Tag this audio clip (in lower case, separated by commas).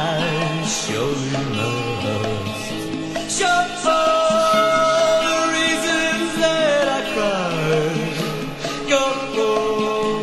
inside a small room, music